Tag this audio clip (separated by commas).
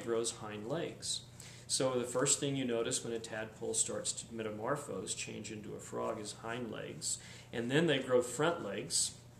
Speech